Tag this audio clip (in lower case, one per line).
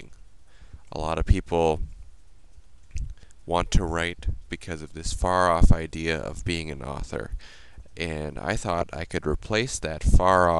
speech